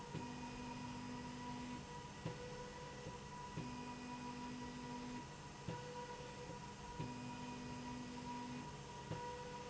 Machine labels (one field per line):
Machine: slide rail